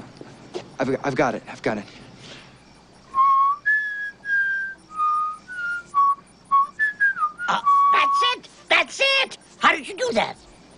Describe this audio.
Male speaking then whistling followed by jubilant male voice